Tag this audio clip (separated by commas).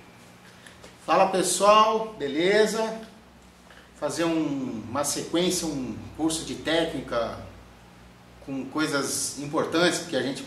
Speech